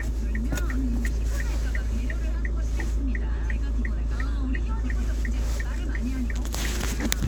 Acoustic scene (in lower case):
car